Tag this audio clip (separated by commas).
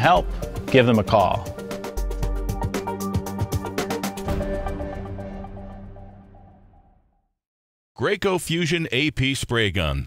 Music, Speech